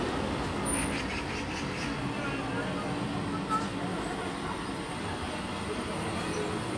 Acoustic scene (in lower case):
residential area